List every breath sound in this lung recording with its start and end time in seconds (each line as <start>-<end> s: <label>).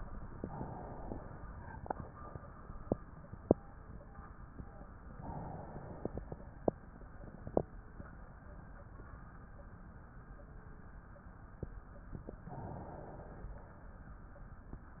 0.00-1.31 s: inhalation
5.11-6.42 s: inhalation
12.49-13.48 s: inhalation
13.48-14.21 s: exhalation